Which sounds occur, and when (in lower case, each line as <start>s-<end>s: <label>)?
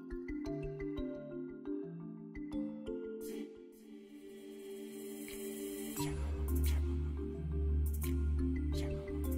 0.0s-9.3s: music
3.2s-3.6s: human voice
5.2s-5.3s: generic impact sounds
5.9s-6.1s: human voice
6.6s-6.8s: human voice
7.8s-8.2s: generic impact sounds
8.7s-8.9s: human voice